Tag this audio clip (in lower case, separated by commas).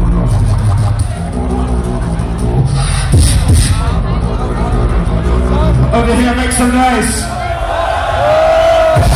speech, dubstep, music